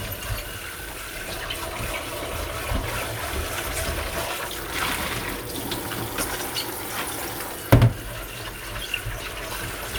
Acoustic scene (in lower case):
kitchen